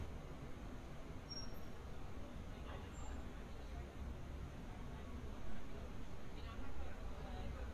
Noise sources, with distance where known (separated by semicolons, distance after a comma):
person or small group talking, far